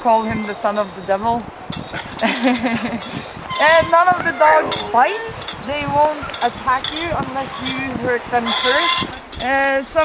A woman talks and something screeches while a dog barks afterwards